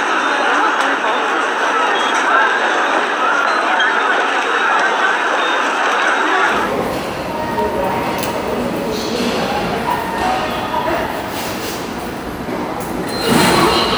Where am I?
in a subway station